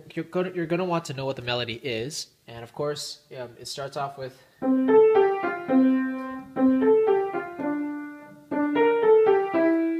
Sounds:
speech, music

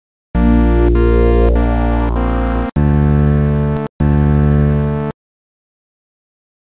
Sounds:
music, theme music

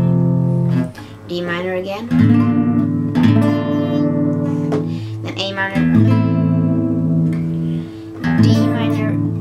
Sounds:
music, speech

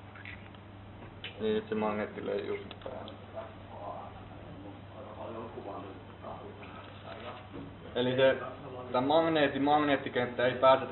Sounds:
speech

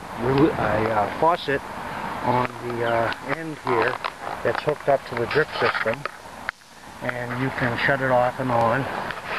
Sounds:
speech

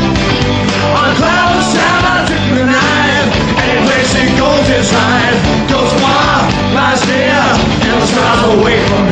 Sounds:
male singing, music

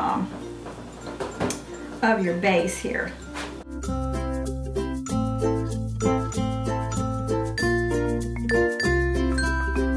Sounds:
inside a small room, music, speech

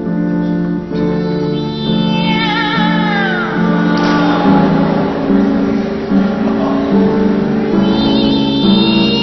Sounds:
music, meow

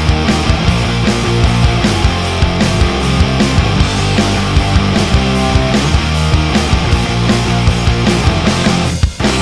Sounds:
music, exciting music

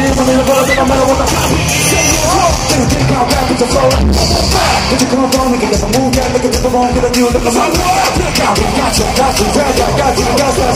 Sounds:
music

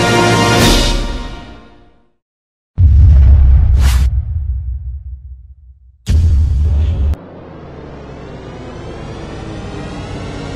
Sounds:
music

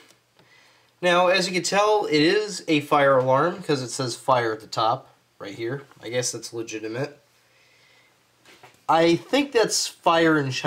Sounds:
speech

